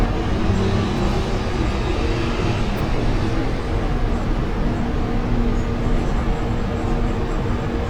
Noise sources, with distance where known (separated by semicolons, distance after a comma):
large-sounding engine